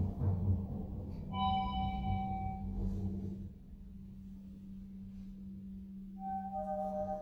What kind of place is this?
elevator